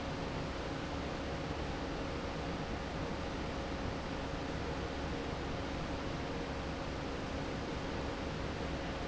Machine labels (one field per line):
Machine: fan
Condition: normal